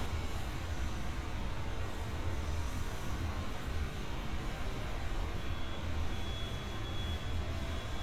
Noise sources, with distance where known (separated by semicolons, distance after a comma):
reverse beeper, near